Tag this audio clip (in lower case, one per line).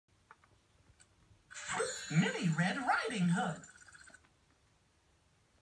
speech
music